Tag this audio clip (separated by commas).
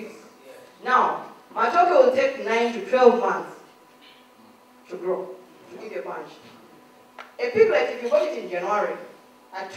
Speech